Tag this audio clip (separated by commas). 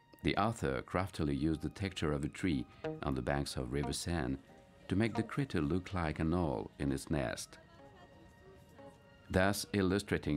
Speech, Music